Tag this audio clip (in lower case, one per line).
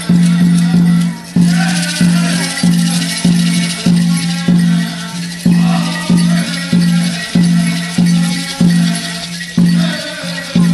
music